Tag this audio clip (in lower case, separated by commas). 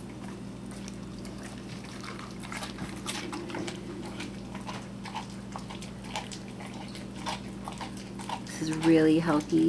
speech